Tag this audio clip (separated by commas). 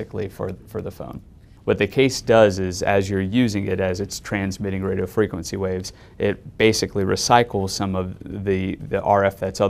Speech